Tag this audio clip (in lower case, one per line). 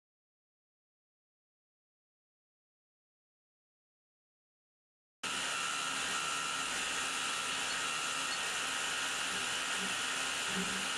tools